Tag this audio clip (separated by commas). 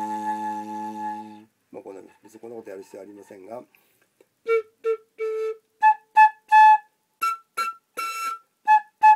Music, Musical instrument, Flute, Speech, woodwind instrument